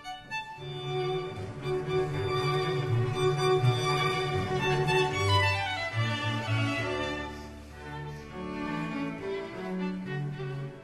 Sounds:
Musical instrument, Music, fiddle

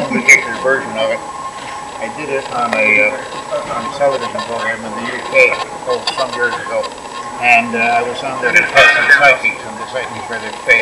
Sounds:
Radio

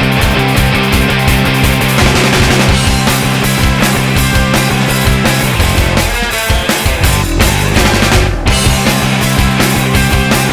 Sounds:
Music

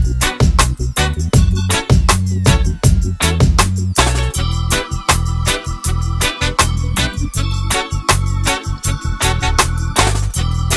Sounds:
Music

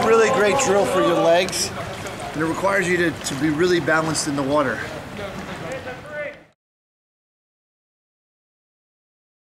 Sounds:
Stream, Speech

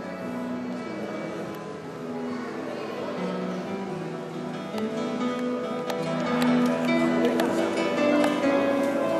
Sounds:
Speech, Musical instrument, Bass guitar, Strum, Music, Acoustic guitar, Plucked string instrument, Guitar

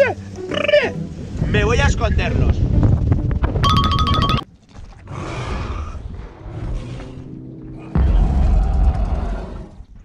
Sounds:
dinosaurs bellowing

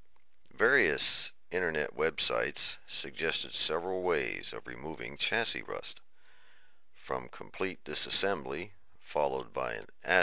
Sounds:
Speech, Radio

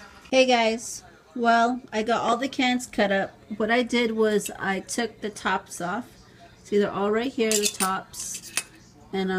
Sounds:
Speech

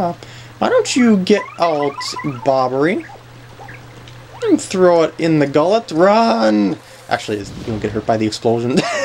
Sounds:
Speech

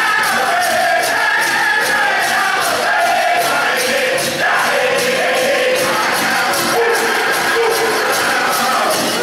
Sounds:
Music

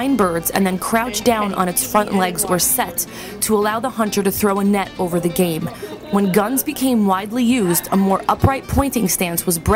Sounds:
Speech, Music

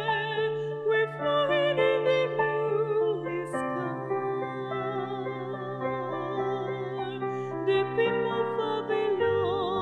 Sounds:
Lullaby, New-age music, Music

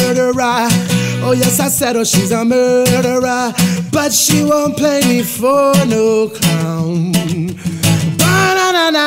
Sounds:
Strum, Music, Musical instrument, Plucked string instrument, Guitar, Electric guitar

